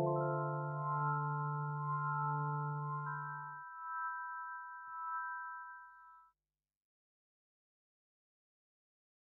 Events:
[0.00, 6.31] music

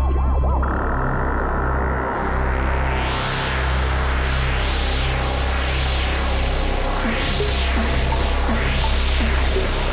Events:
[0.01, 9.92] music

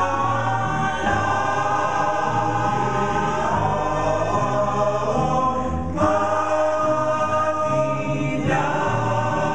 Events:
[0.00, 9.54] chant
[0.00, 9.54] music

